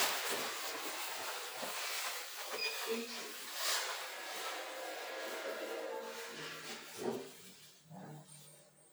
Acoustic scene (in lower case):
elevator